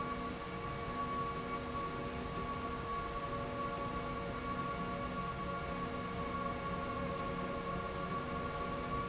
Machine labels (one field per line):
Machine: slide rail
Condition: normal